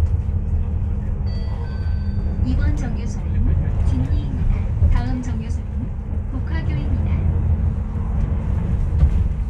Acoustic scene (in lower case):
bus